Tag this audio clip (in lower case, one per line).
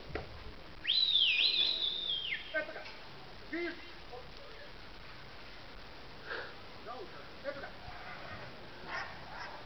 outside, urban or man-made
speech
dove